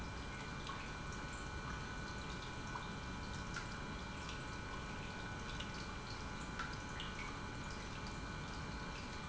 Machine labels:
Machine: pump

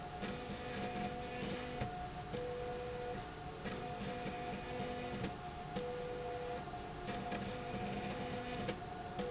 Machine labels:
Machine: slide rail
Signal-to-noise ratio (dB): 0 dB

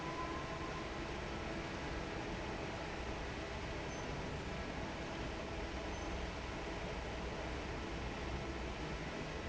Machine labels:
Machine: fan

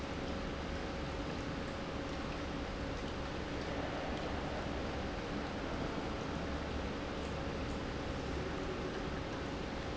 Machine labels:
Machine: pump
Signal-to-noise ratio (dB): -6 dB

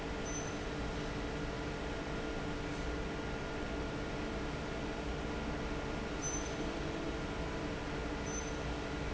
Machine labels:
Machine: fan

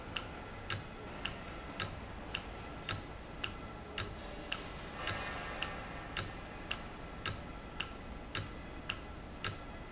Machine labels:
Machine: valve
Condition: normal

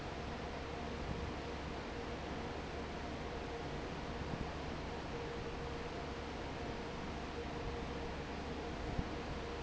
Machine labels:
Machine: fan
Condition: normal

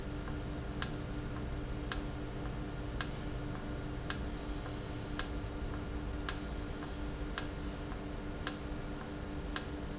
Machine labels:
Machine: valve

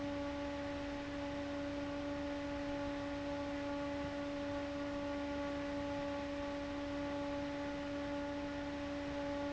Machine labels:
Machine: fan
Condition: abnormal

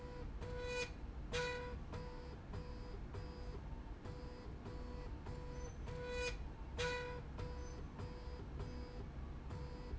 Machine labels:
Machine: slide rail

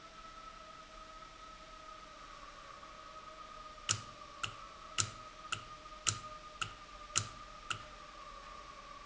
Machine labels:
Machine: valve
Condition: normal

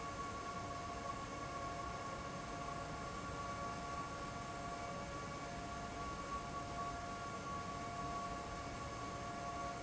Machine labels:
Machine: fan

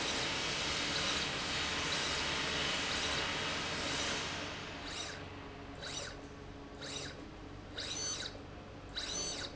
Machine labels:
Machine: slide rail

